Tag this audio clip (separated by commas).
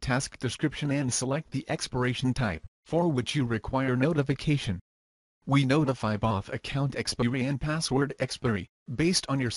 Speech